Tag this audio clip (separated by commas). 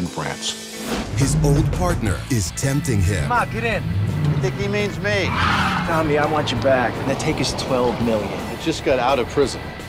Speech, Music